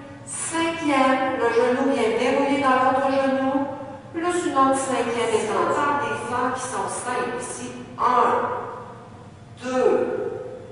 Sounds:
speech

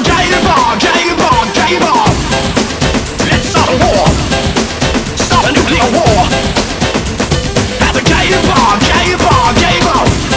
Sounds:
music

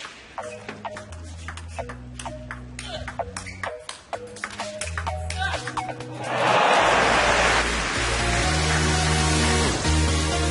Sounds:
playing table tennis

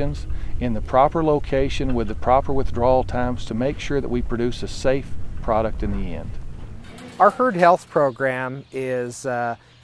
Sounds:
speech

